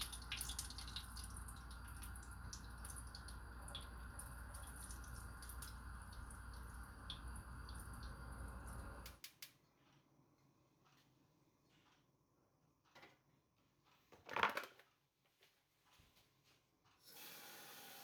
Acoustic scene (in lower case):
kitchen